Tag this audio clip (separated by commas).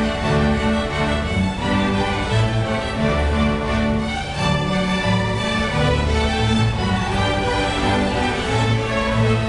Music, fiddle, Orchestra, Musical instrument